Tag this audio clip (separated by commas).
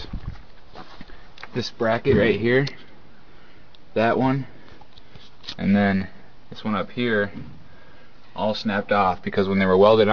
Speech